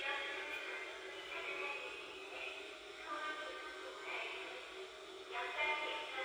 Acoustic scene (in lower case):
subway train